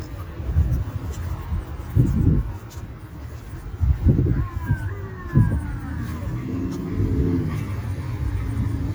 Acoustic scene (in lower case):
street